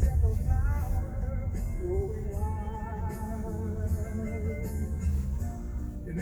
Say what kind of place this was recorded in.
car